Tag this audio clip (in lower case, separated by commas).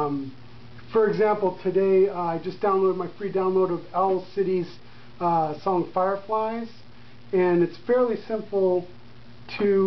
speech